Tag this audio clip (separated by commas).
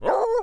Dog, Bark, pets, Animal